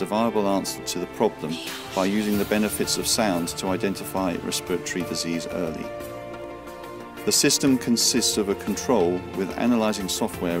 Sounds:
Music, Speech

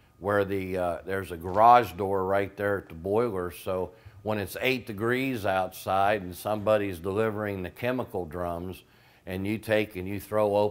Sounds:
Speech

